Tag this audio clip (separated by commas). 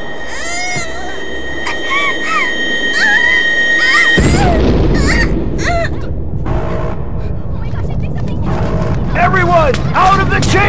Speech, inside a large room or hall